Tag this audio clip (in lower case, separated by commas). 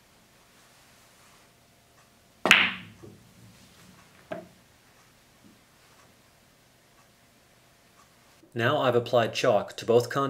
striking pool